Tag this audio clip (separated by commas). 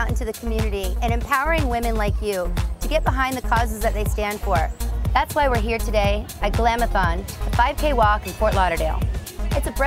Music, Speech